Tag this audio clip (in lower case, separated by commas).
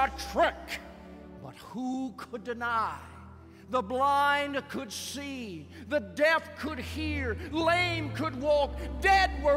speech, narration